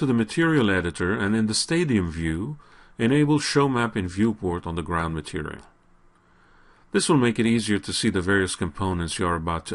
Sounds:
speech

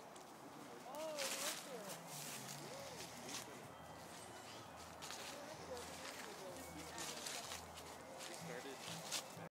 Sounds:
speech

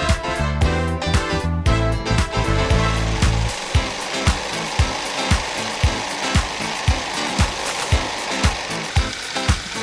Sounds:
music

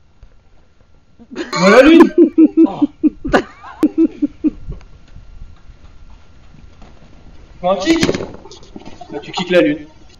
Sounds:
speech

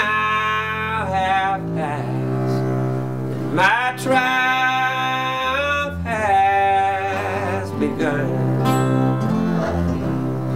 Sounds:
music

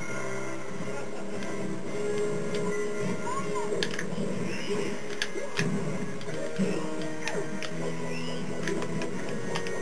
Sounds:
television

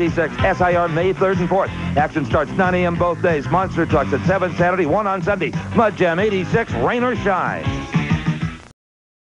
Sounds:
speech, music

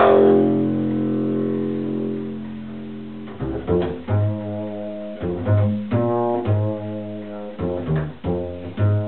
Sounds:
music, musical instrument, bowed string instrument, double bass, playing double bass

